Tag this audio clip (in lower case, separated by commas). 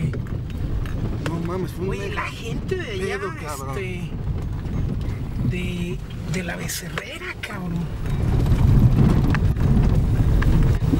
volcano explosion